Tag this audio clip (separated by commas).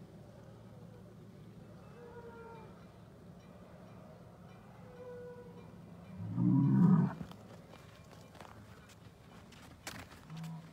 bull bellowing